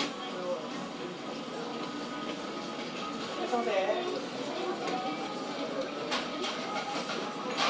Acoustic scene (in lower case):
cafe